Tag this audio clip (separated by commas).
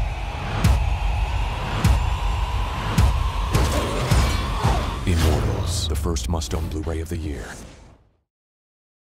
Speech, Music